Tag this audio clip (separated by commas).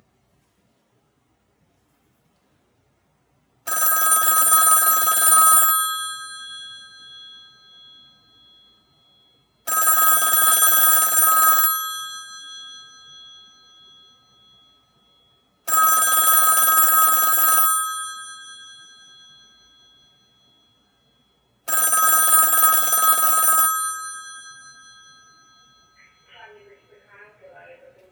Telephone, Alarm